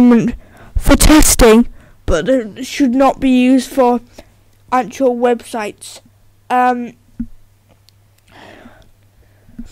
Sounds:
speech

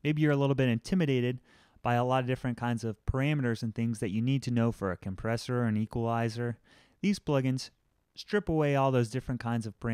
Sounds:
speech

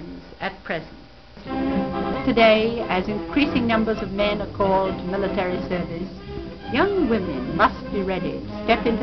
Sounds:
female speech
narration
music
speech

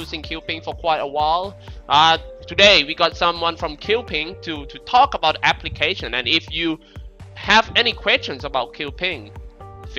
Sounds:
music
speech

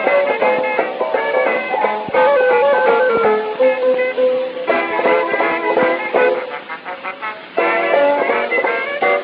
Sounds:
music
orchestra

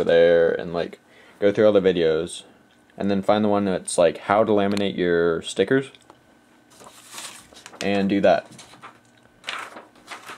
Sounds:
speech

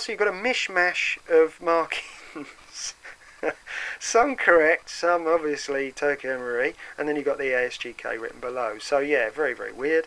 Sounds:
speech

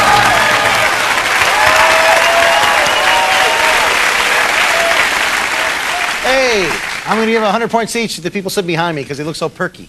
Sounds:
applause
speech

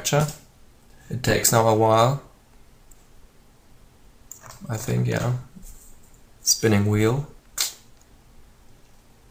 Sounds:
speech

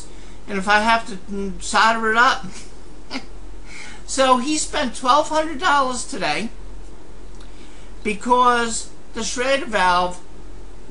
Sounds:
speech

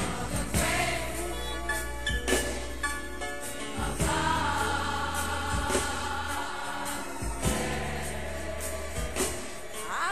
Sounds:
gospel music
music

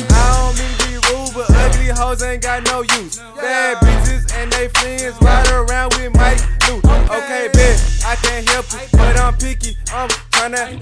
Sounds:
music

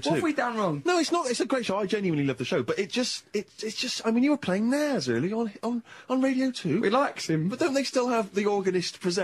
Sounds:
speech
radio

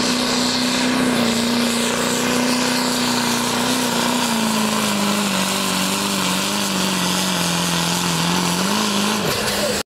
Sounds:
truck
vehicle

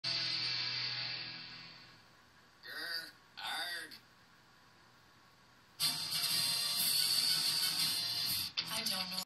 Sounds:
television
speech
music

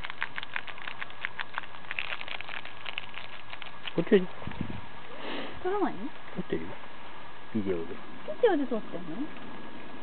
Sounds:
speech

